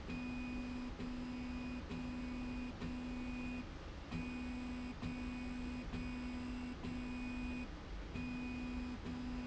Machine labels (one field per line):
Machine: slide rail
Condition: normal